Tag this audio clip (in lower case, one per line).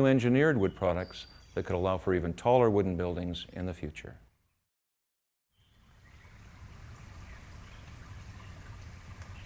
speech
outside, rural or natural